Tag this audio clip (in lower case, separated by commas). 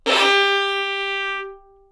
musical instrument, bowed string instrument, music